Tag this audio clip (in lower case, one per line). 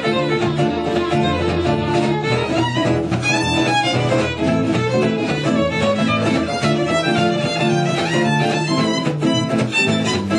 fiddle
musical instrument
music